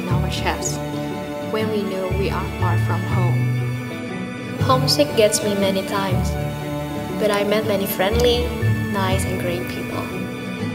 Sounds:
music
speech

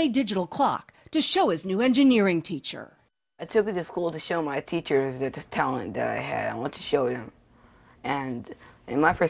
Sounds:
speech

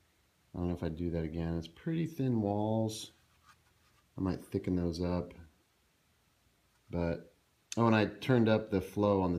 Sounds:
speech

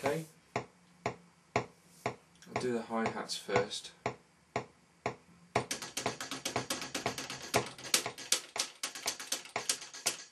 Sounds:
speech

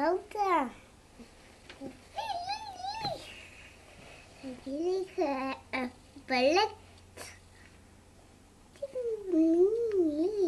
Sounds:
speech
bird

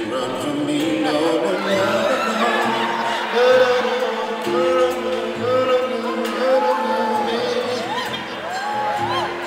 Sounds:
music

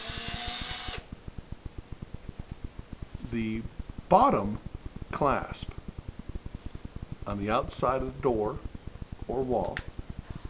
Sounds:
speech

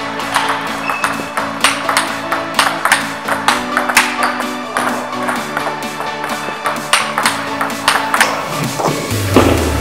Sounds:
playing table tennis

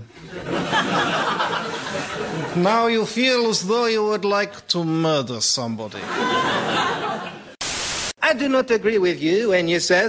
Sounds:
speech

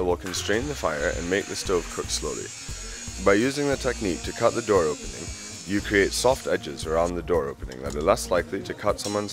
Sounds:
music
speech
electric shaver

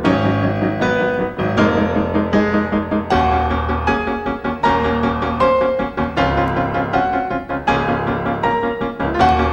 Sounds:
music

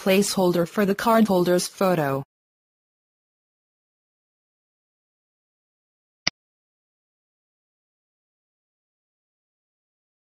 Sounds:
speech

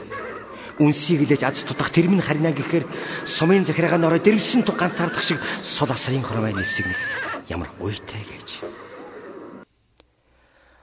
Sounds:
speech

